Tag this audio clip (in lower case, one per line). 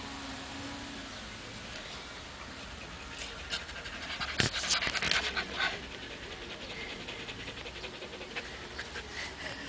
animal
music
dog
pant
pets